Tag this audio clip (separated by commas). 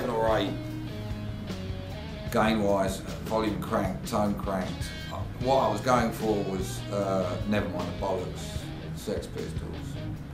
Music, Speech, Musical instrument, Guitar, Electric guitar, Plucked string instrument